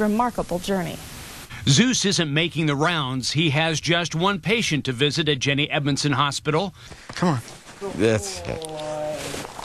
Women speaking followed by man speaking